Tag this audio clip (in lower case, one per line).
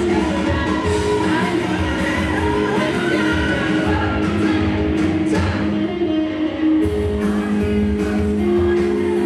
plucked string instrument
electric guitar
music
strum
musical instrument